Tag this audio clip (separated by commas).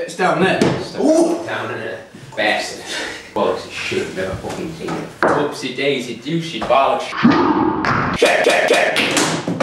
Speech, inside a small room